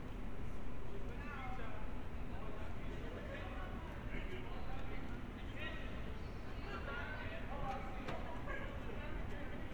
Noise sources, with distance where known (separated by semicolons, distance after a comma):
person or small group talking